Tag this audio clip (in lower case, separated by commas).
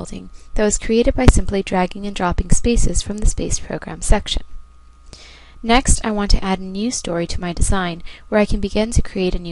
speech